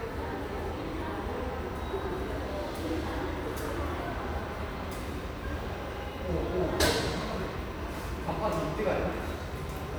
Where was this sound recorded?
in a subway station